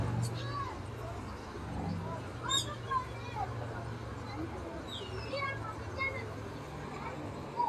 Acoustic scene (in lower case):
park